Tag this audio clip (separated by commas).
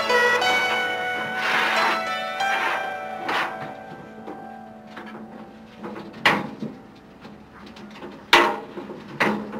outside, urban or man-made, Music